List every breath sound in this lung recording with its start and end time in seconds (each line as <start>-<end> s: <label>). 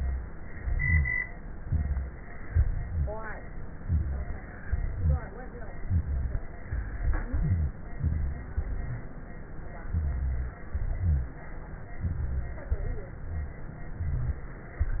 0.53-1.18 s: inhalation
0.53-1.18 s: rhonchi
1.54-2.18 s: exhalation
1.54-2.18 s: rhonchi
2.50-3.15 s: inhalation
2.50-3.15 s: rhonchi
3.78-4.42 s: exhalation
3.78-4.42 s: rhonchi
4.65-5.24 s: inhalation
4.65-5.24 s: rhonchi
5.84-6.43 s: exhalation
5.84-6.43 s: rhonchi
7.15-7.74 s: inhalation
7.15-7.74 s: rhonchi
7.99-8.58 s: exhalation
7.99-8.58 s: rhonchi
9.92-10.61 s: inhalation
9.92-10.61 s: rhonchi
10.74-11.39 s: exhalation
10.74-11.39 s: rhonchi
12.01-12.66 s: inhalation
12.01-12.66 s: rhonchi
12.71-13.21 s: exhalation
12.71-13.21 s: rhonchi
13.96-14.46 s: inhalation
13.96-14.46 s: rhonchi